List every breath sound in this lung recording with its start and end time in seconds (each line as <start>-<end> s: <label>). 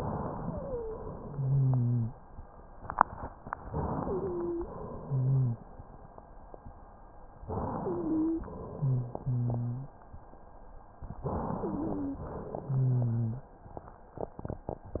0.34-1.06 s: wheeze
1.19-2.13 s: wheeze
3.65-4.66 s: inhalation
3.95-4.67 s: wheeze
4.64-5.86 s: exhalation
4.78-5.66 s: wheeze
7.44-8.45 s: inhalation
7.72-8.44 s: wheeze
8.49-9.93 s: exhalation
8.75-9.95 s: wheeze
11.23-12.24 s: inhalation
11.57-12.25 s: wheeze
12.26-13.46 s: exhalation
12.62-13.46 s: wheeze
14.98-15.00 s: inhalation